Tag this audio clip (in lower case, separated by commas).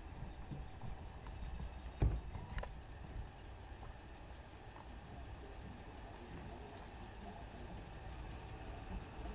door